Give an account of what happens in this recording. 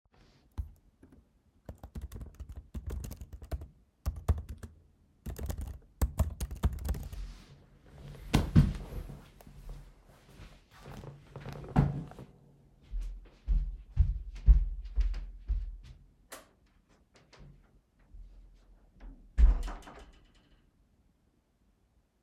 I worked at my laptop in the office, stood up, walked to the the door, turned of the light, walked outside and closed the door